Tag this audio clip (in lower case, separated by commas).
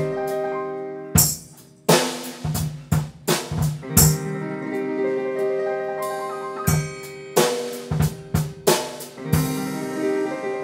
music